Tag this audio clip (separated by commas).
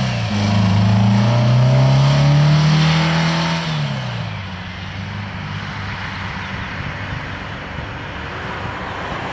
revving, Vehicle, Car